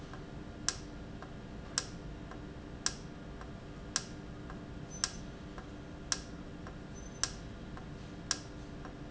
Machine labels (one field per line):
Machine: valve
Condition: normal